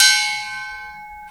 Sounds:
Music, Percussion, Gong, Musical instrument

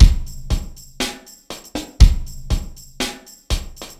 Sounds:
Drum kit, Percussion, Music, Bass drum, Musical instrument, Snare drum, Drum

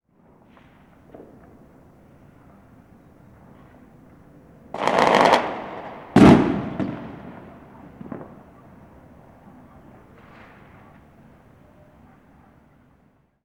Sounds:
Explosion, Fireworks

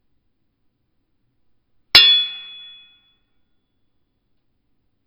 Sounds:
Hammer, Tools, Chink, Glass

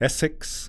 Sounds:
Speech, Human voice, man speaking

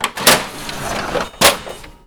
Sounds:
Printer, Mechanisms

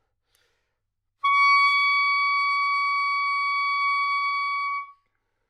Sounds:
Musical instrument, woodwind instrument, Music

